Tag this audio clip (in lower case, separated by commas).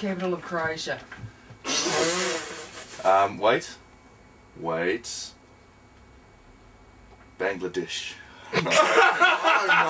speech